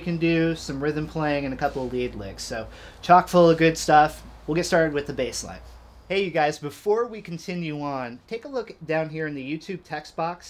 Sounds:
speech

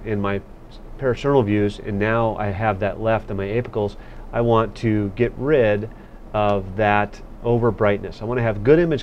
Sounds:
speech

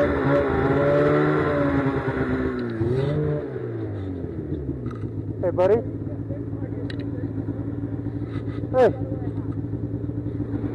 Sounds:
vehicle
speech

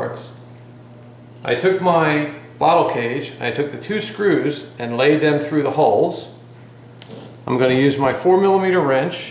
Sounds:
speech

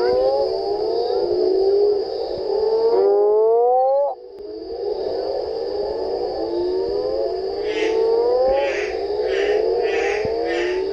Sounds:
frog croaking

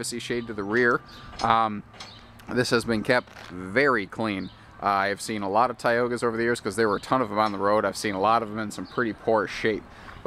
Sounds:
speech

